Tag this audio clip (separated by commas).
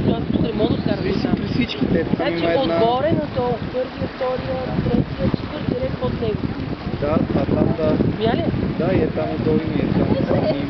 outside, rural or natural, Speech